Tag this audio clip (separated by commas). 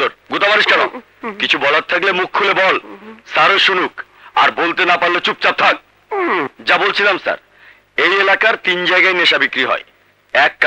police radio chatter